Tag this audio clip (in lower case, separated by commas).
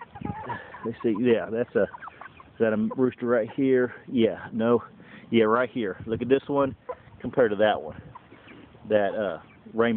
speech, bird, rooster